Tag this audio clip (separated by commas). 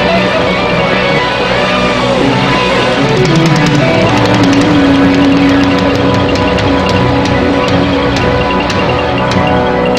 Music